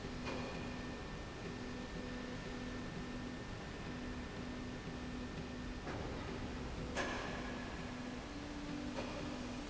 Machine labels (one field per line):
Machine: slide rail